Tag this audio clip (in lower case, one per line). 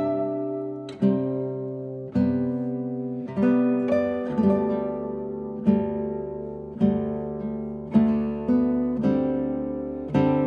playing oboe